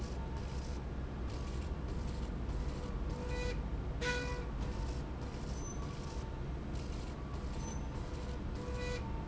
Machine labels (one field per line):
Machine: slide rail